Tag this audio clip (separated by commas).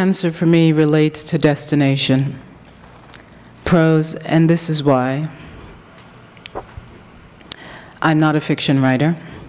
Speech